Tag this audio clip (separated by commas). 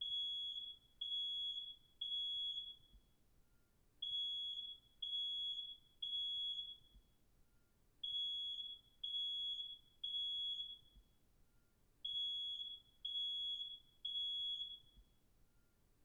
Alarm